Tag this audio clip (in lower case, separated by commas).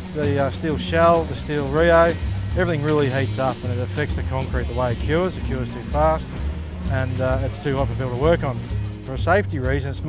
speech, music